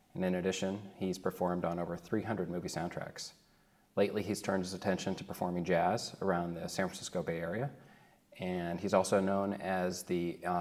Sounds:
speech

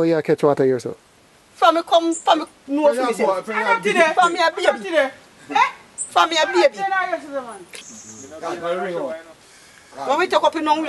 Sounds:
speech

